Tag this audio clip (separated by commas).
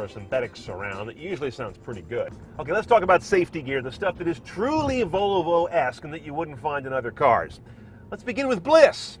Speech